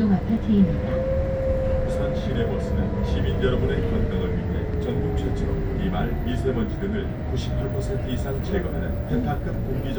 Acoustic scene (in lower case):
bus